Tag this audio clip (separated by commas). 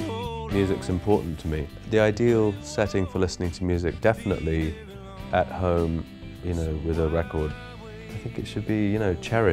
Music, Speech